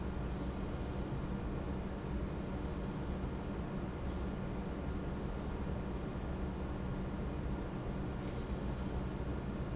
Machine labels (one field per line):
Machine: pump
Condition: normal